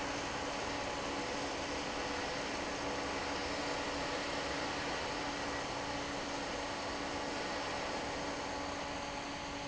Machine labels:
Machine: fan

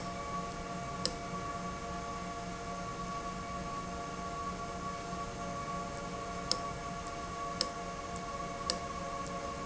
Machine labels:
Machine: valve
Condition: abnormal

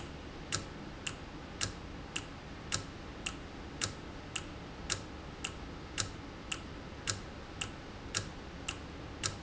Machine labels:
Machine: valve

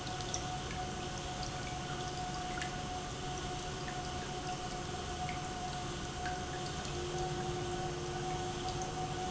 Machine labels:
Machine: pump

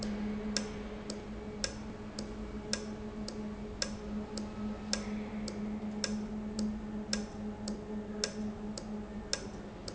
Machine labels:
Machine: valve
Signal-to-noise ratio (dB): -6 dB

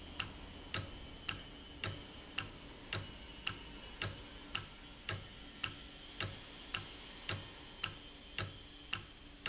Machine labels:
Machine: valve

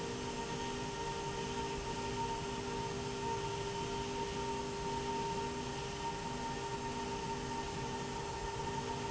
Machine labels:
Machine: slide rail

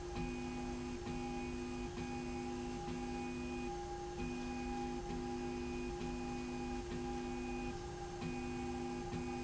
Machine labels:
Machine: slide rail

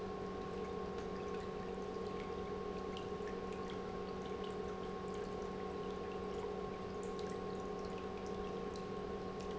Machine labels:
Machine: pump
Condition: normal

